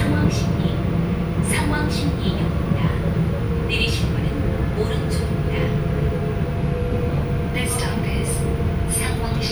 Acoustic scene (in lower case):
subway train